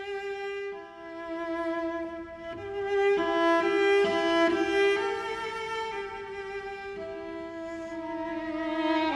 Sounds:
bowed string instrument, fiddle, cello

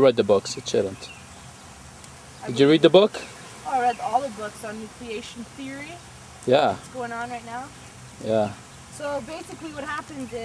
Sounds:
speech

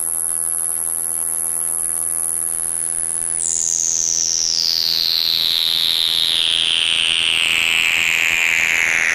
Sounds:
mains hum, hum

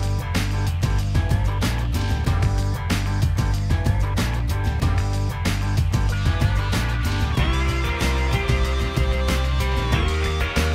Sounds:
music

